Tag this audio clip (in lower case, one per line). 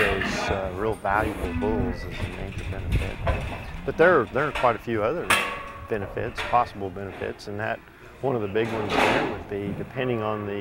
speech